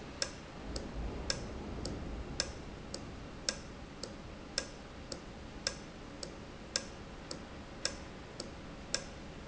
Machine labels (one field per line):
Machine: valve